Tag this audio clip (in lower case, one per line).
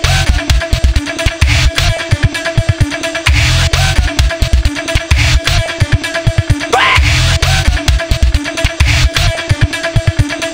music